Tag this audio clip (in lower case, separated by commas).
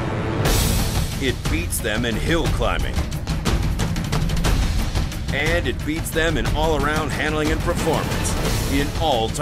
speech, music